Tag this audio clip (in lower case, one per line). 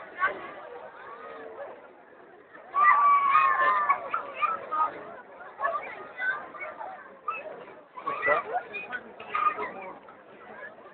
speech
outside, urban or man-made